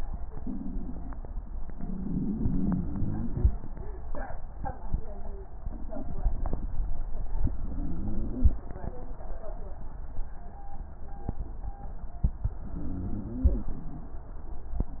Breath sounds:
1.77-3.49 s: inhalation
1.77-3.49 s: crackles
7.49-8.59 s: inhalation
7.49-8.59 s: crackles
12.65-14.21 s: inhalation
12.65-14.21 s: crackles

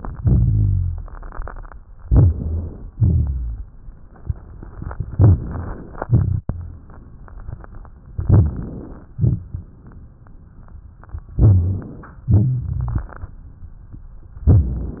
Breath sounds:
0.14-1.74 s: exhalation
0.20-1.10 s: rhonchi
2.02-2.92 s: inhalation
2.08-2.69 s: rhonchi
2.93-3.64 s: exhalation
3.00-3.64 s: rhonchi
5.16-5.85 s: inhalation
5.16-5.85 s: rhonchi
5.95-7.29 s: exhalation
6.05-6.86 s: rhonchi
8.17-9.09 s: inhalation
9.14-10.16 s: exhalation
9.15-9.65 s: rhonchi
11.35-11.82 s: rhonchi
11.38-12.22 s: inhalation
12.23-13.09 s: rhonchi
12.33-13.37 s: exhalation
12.33-13.37 s: crackles

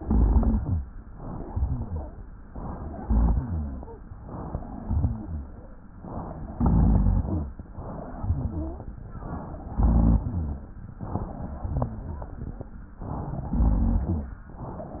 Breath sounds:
0.00-0.84 s: inhalation
0.00-0.84 s: crackles
1.44-1.82 s: rhonchi
1.46-2.18 s: exhalation
1.82-2.20 s: wheeze
2.96-3.44 s: inhalation
3.02-3.81 s: rhonchi
3.42-3.89 s: exhalation
4.25-4.80 s: inhalation
4.78-5.49 s: exhalation
4.78-5.49 s: rhonchi
5.96-6.58 s: inhalation
6.56-7.53 s: exhalation
6.56-7.53 s: rhonchi
7.70-8.20 s: inhalation
8.21-8.84 s: exhalation
8.21-8.84 s: wheeze
9.18-9.81 s: inhalation
9.79-10.70 s: exhalation
9.79-10.70 s: rhonchi
11.02-11.71 s: inhalation
11.74-12.43 s: exhalation
11.74-12.43 s: wheeze
13.00-13.57 s: inhalation
13.58-14.40 s: exhalation
13.58-14.40 s: rhonchi

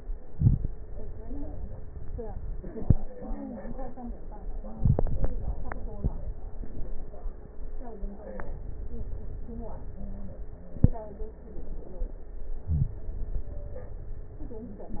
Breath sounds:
0.25-0.70 s: inhalation
0.25-0.70 s: crackles

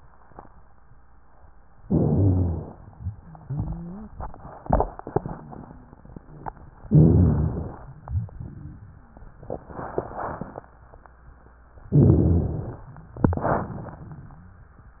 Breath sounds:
1.82-2.74 s: inhalation
1.86-2.70 s: rhonchi
2.76-4.34 s: exhalation
3.46-4.14 s: wheeze
6.88-7.72 s: rhonchi
6.88-7.80 s: inhalation
7.88-9.46 s: exhalation
8.01-8.79 s: rhonchi
8.95-9.18 s: wheeze
11.90-12.74 s: rhonchi
11.92-12.84 s: inhalation
13.16-15.00 s: exhalation
13.99-14.86 s: rhonchi

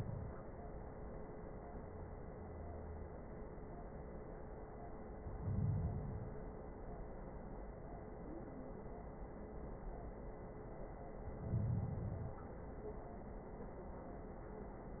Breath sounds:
5.16-6.52 s: inhalation
11.14-12.49 s: inhalation

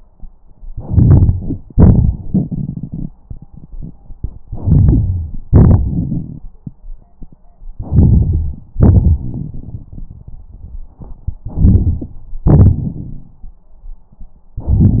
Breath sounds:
0.68-1.65 s: inhalation
1.72-3.08 s: exhalation
4.47-5.38 s: inhalation
4.66-5.38 s: wheeze
5.48-6.46 s: exhalation
7.77-8.58 s: inhalation
8.74-11.39 s: exhalation
8.74-11.39 s: crackles
11.41-12.15 s: inhalation
12.48-13.65 s: exhalation
12.48-13.65 s: crackles
14.61-15.00 s: inhalation

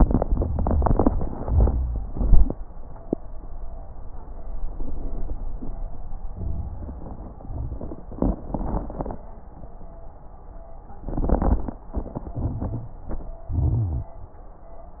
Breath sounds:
12.37-12.94 s: inhalation
12.37-12.94 s: crackles
13.53-14.10 s: exhalation
13.53-14.10 s: crackles

